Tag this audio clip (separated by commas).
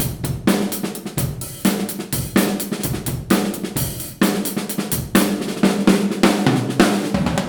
Music, Percussion, Drum, Drum kit, Musical instrument